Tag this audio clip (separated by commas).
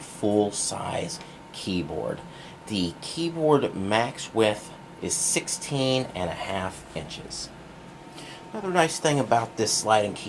Speech